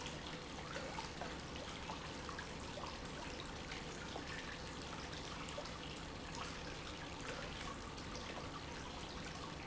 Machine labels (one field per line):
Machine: pump